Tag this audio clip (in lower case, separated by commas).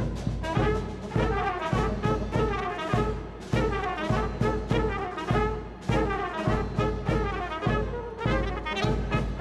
trombone, music, trumpet, brass instrument